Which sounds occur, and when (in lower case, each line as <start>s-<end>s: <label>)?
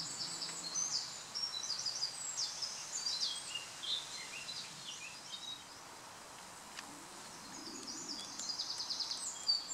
0.0s-9.7s: background noise
0.1s-5.6s: tweet
7.7s-9.7s: tweet